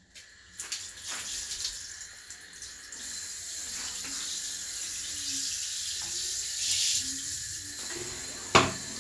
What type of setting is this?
restroom